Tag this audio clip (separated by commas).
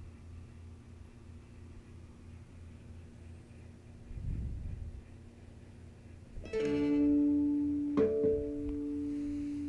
Musical instrument, Music